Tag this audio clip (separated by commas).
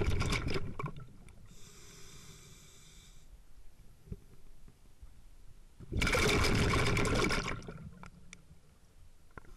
Liquid, Fill (with liquid)